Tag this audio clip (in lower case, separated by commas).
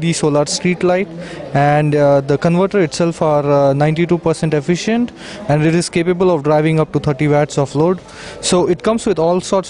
speech